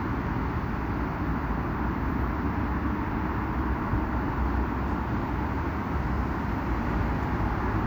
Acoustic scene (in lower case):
street